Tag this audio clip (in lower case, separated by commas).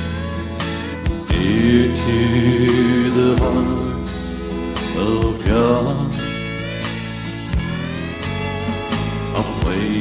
country, gospel music, music